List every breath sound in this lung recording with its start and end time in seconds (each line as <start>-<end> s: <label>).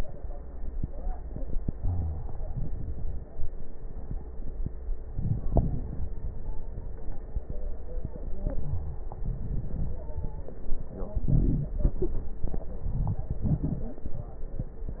1.77-2.24 s: wheeze
1.77-2.50 s: inhalation
5.14-6.11 s: inhalation
5.14-6.11 s: crackles
6.08-7.44 s: stridor
8.48-9.11 s: wheeze
8.48-9.15 s: inhalation
9.15-10.15 s: exhalation
9.15-10.15 s: crackles
9.93-10.46 s: stridor
11.21-11.72 s: inhalation
11.21-11.72 s: crackles
12.69-13.31 s: crackles
12.71-13.33 s: inhalation
13.34-13.96 s: exhalation
13.34-13.96 s: crackles